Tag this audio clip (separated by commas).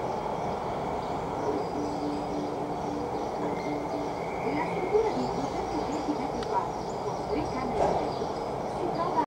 Speech